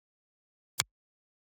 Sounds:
hands, finger snapping

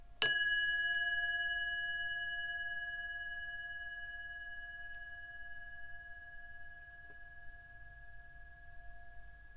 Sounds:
bell, chime

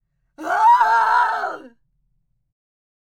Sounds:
screaming, human voice

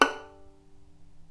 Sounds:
bowed string instrument, musical instrument, music

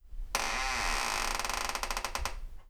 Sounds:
squeak

